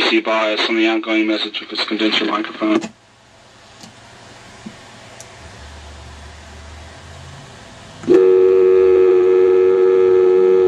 A man speaks, followed by a click and a loud dial tone